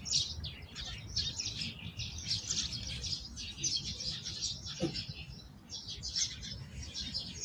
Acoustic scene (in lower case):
park